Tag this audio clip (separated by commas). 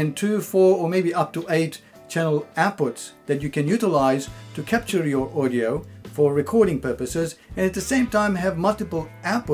Speech, Music